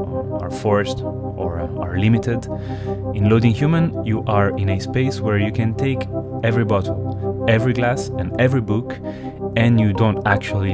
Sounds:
music, speech

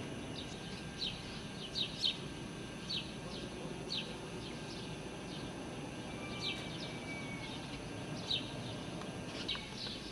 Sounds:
animal, bird

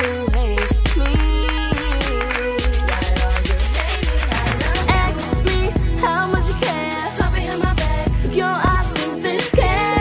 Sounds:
independent music, soundtrack music, pop music, music

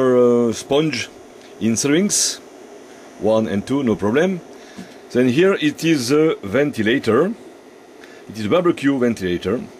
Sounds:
speech

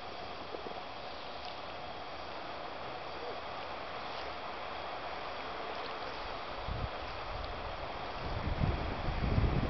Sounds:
boat

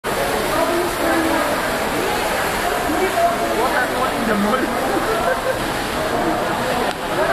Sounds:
speech

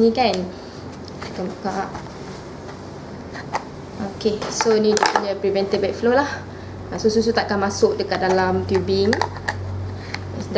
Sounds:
speech

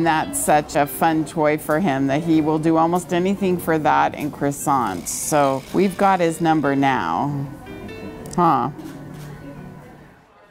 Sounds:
music, speech

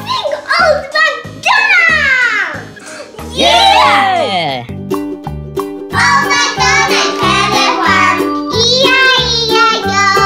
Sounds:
child singing

